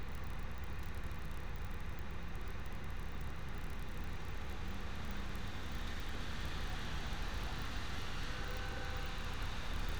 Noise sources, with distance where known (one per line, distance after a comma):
medium-sounding engine, near
car horn, far